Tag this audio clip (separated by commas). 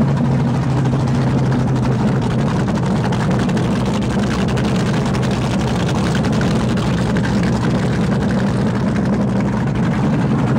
Medium engine (mid frequency), Vehicle, Engine, Idling